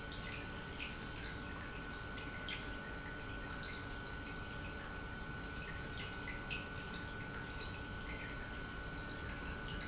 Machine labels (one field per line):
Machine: pump